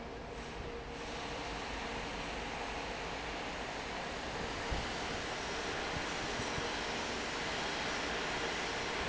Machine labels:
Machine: fan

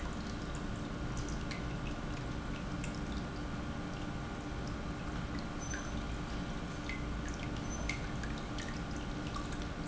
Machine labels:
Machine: pump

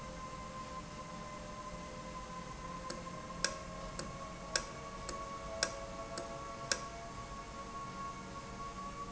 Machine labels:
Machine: valve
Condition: normal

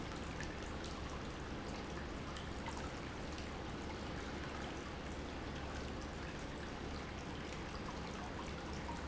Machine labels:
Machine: pump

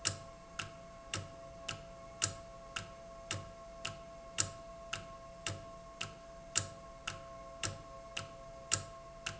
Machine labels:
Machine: valve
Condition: normal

